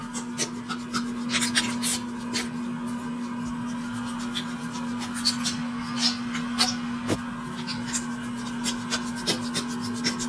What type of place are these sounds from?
restroom